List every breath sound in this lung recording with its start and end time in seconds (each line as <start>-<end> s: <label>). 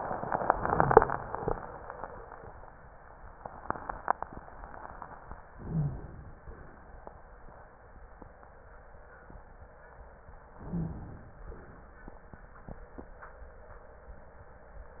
5.52-6.46 s: inhalation
5.71-5.90 s: wheeze
6.43-7.38 s: exhalation
10.50-11.42 s: inhalation
10.71-10.93 s: wheeze
11.36-12.15 s: exhalation